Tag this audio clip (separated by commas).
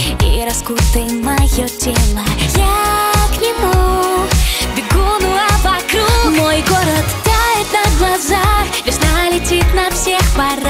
Music, Exciting music